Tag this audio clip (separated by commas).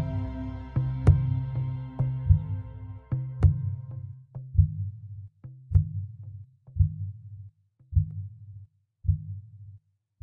Music